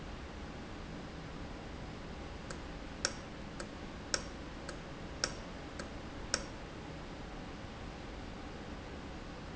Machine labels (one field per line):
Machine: valve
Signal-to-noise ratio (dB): 0 dB